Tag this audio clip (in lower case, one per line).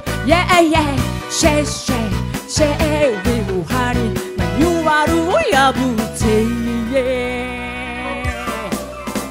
music
music of asia
happy music